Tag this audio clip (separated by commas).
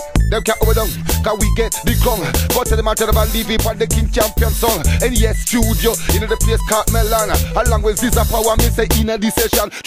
Music, Music of Africa